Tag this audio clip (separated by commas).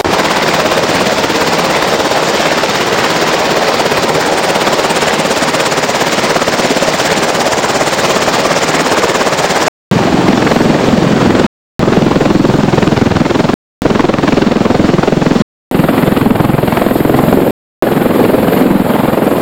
Aircraft, Vehicle